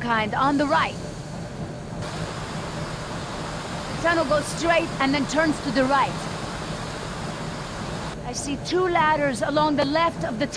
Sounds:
Speech

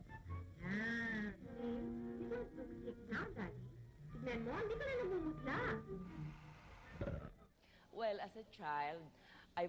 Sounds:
Music, Speech

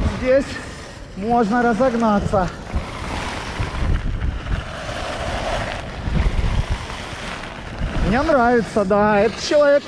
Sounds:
skiing

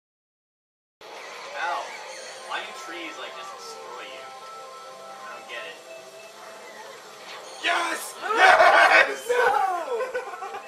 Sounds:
inside a large room or hall, Music, Speech

